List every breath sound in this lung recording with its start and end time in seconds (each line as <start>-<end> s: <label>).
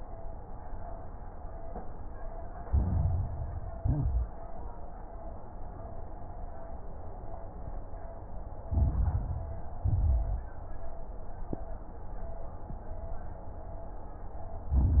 2.66-3.78 s: inhalation
2.66-3.78 s: crackles
3.78-4.38 s: exhalation
3.78-4.38 s: crackles
8.66-9.78 s: inhalation
8.66-9.78 s: crackles
9.82-10.55 s: exhalation
9.82-10.55 s: crackles
14.73-15.00 s: inhalation
14.73-15.00 s: crackles